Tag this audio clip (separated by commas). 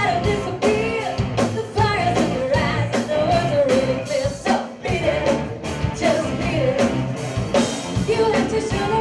Rock and roll, Music, Heavy metal, Progressive rock, Punk rock